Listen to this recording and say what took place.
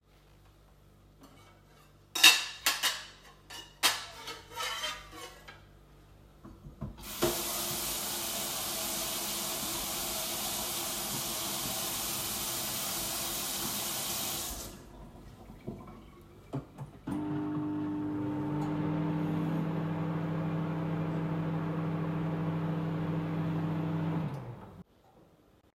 I brought out a plate and knife, I turned on the water and turned it off. Then I turned on the microwave and turned it off